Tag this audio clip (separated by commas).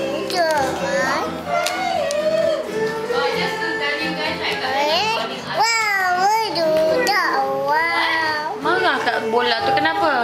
Music, Speech